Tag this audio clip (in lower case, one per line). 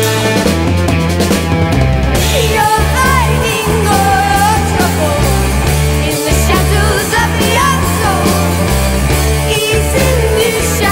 music